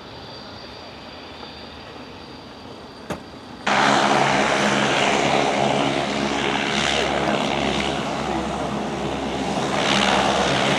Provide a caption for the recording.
A plane taking off with people talking in the background